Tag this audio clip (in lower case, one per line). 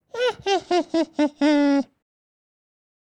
laughter
human voice